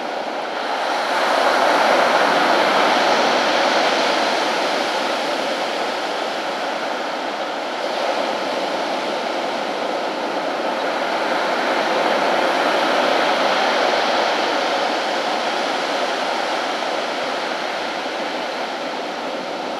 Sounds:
water, ocean, surf

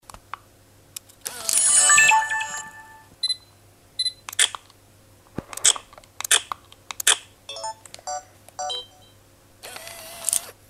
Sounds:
camera, mechanisms

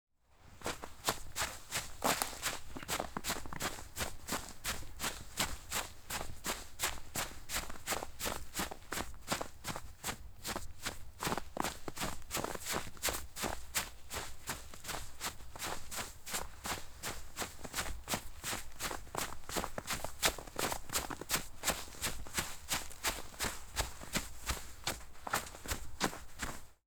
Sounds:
run

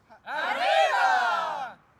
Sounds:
cheering, human group actions

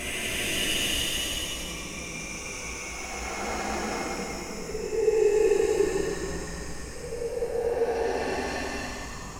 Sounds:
human voice

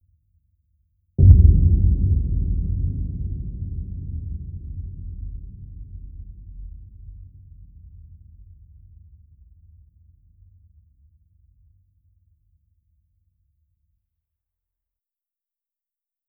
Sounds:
explosion, boom

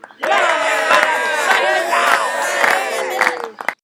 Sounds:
clapping, human group actions, hands, cheering

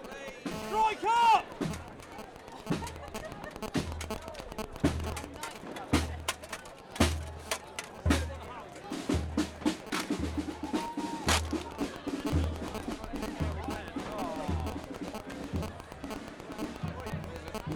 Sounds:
human group actions, crowd

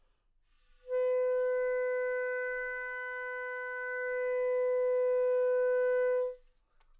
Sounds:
wind instrument, musical instrument, music

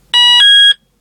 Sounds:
alarm

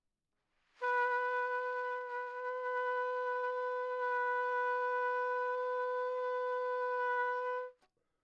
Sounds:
music, musical instrument, brass instrument, trumpet

